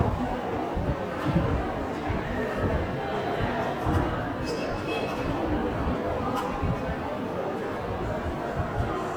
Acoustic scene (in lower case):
crowded indoor space